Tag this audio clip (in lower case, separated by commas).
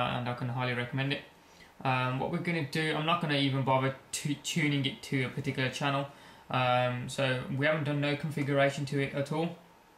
speech